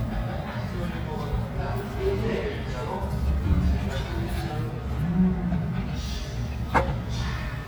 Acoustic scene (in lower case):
restaurant